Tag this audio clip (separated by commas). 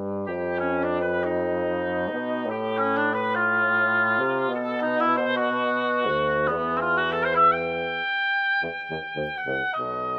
Musical instrument, Music, Wind instrument